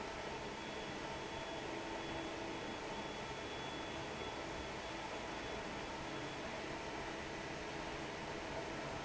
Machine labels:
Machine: fan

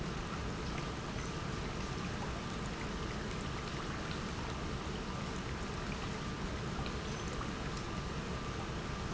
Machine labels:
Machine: pump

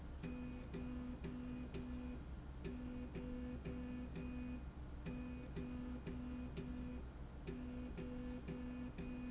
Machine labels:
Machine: slide rail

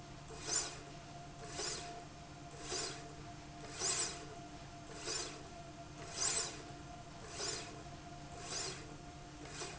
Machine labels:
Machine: slide rail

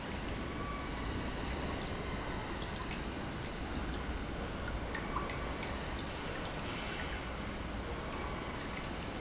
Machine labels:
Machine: pump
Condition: normal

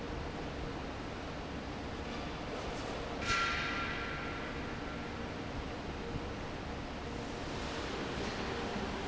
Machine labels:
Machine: fan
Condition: normal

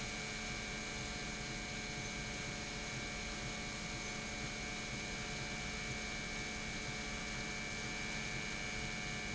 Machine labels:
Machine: pump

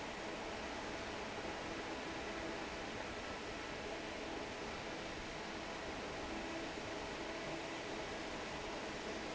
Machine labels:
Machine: fan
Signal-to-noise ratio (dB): 6 dB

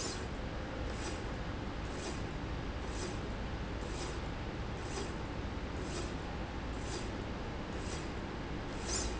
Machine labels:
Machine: slide rail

